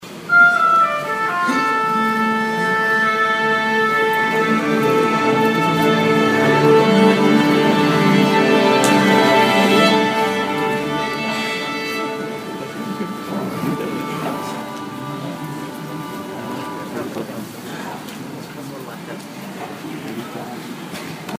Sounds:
music, musical instrument

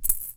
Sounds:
rattle (instrument), musical instrument, music, rattle, percussion

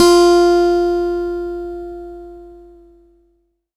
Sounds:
acoustic guitar, musical instrument, plucked string instrument, music, guitar

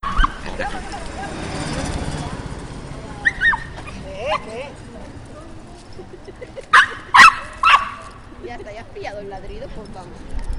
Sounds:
dog, pets, animal

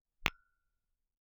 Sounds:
glass, tap

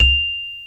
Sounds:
music, musical instrument, percussion, mallet percussion, marimba

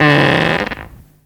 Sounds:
fart

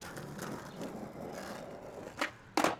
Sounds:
vehicle, skateboard

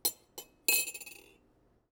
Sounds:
silverware, domestic sounds

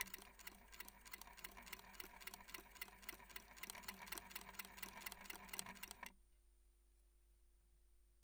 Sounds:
mechanisms

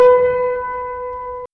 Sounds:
musical instrument, piano, keyboard (musical), music

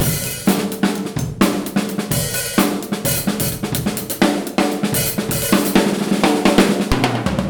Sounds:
musical instrument, drum kit, percussion, music

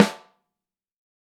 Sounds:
snare drum, music, musical instrument, percussion, drum

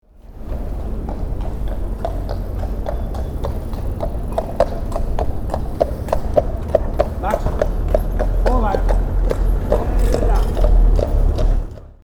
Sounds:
animal, livestock

